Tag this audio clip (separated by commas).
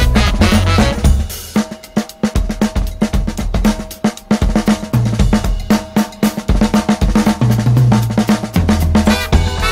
Hi-hat, Cymbal, Bass drum, Music, Snare drum, Drum